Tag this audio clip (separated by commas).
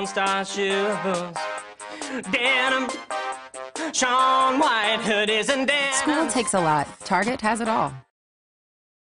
Speech, Music